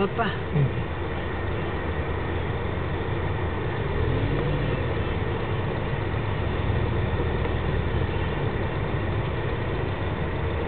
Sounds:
car
speech
vehicle

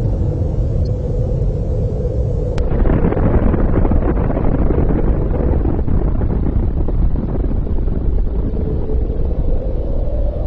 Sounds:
sound effect

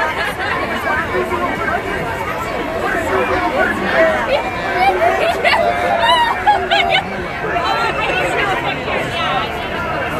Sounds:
people marching

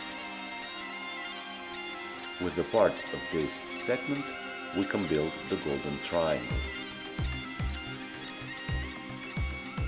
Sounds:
music
speech

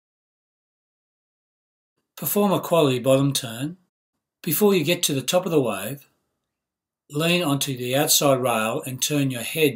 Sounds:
speech

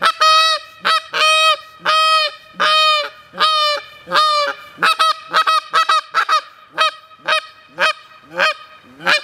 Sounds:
fowl
honk
goose

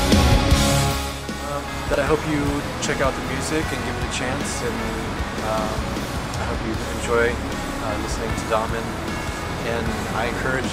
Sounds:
speech
music

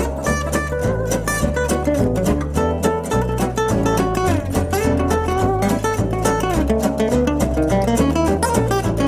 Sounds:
strum
musical instrument
music
guitar
plucked string instrument

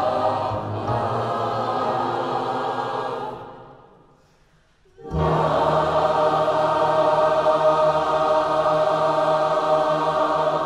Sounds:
singing choir

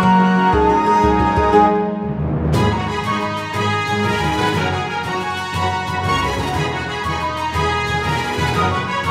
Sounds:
music

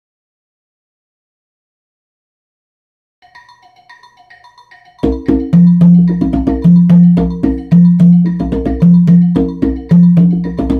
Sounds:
playing congas

